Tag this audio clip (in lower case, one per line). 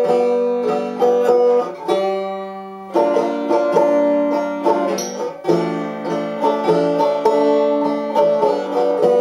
banjo
playing banjo
music